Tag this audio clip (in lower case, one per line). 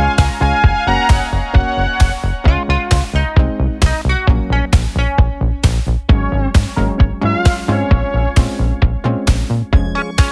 playing synthesizer